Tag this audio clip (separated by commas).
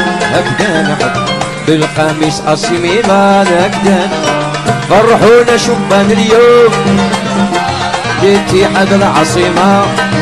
Music